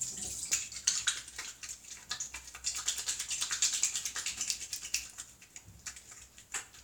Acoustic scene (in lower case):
restroom